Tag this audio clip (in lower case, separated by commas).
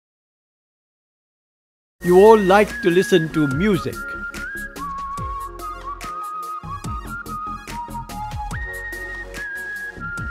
music, speech